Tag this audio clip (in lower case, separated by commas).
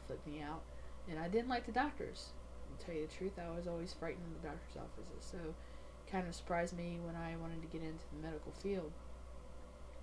speech, woman speaking